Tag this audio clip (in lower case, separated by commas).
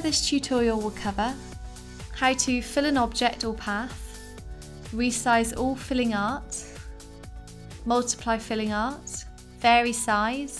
music, speech